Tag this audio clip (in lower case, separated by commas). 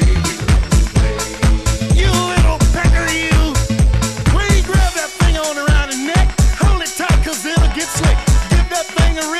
music